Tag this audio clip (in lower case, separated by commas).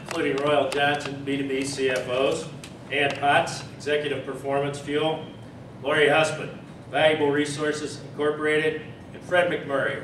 speech